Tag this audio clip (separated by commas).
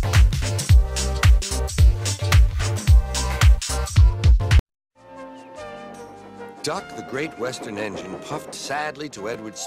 Music, Speech